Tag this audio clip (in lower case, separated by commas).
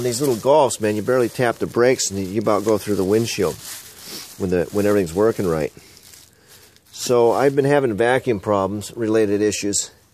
speech